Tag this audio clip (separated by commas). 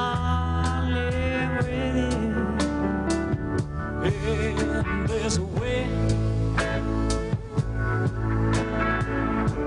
Music